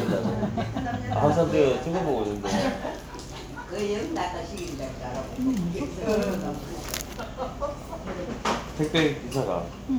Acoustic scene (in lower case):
crowded indoor space